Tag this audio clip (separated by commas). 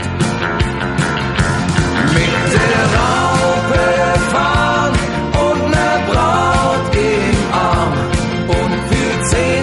Music, Rock and roll